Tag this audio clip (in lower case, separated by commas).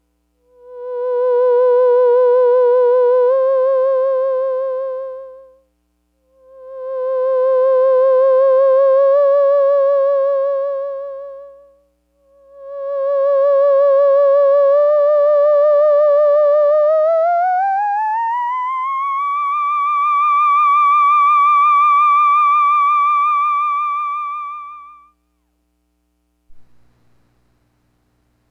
musical instrument, music